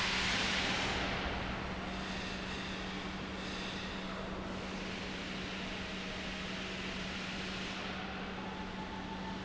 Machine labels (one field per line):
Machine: pump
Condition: normal